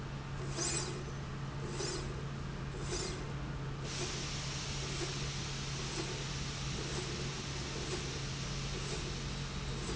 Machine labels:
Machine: slide rail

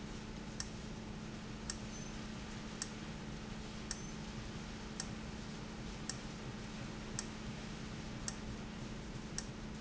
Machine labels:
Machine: valve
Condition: abnormal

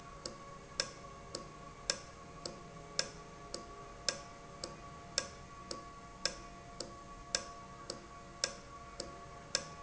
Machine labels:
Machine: valve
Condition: normal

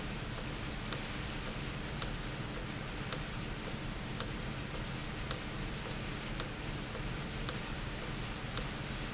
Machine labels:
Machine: valve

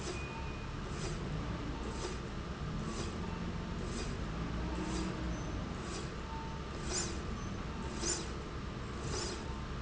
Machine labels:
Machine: slide rail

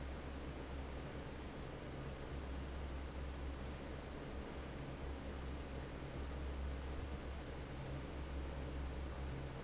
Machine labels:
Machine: fan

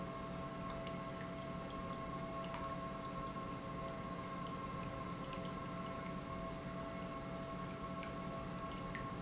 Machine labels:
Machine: pump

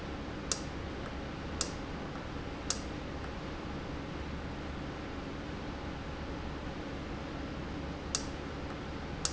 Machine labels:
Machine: valve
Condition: normal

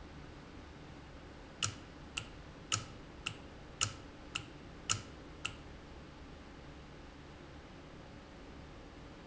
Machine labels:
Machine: valve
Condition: normal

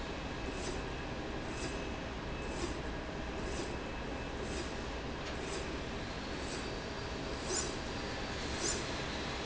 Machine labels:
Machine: slide rail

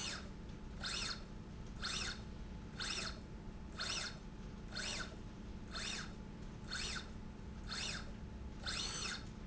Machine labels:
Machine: slide rail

